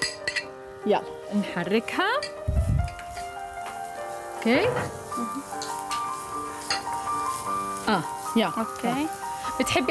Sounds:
Music, Speech

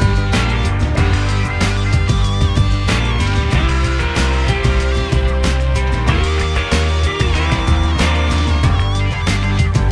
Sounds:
Music

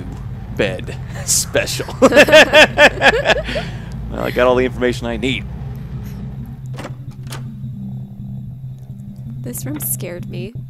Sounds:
Music, Speech

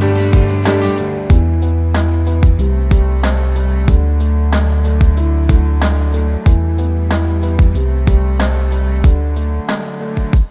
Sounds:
Music

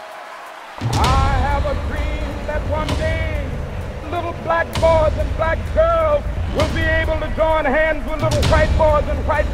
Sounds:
Speech, Music

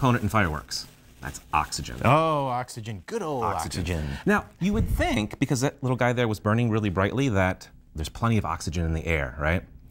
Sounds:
Speech

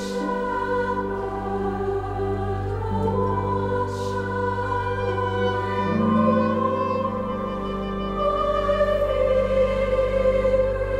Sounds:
Music, Choir

